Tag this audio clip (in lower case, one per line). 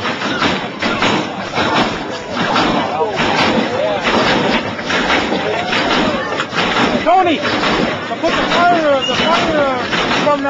skidding
vehicle
speech